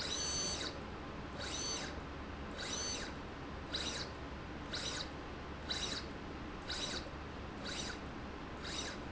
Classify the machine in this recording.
slide rail